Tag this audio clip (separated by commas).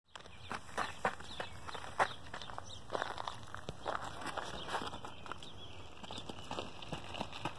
Run, Animal, Bird, Wild animals, Bird vocalization